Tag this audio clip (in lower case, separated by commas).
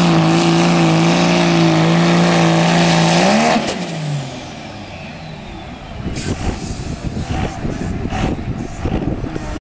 speech, vehicle, truck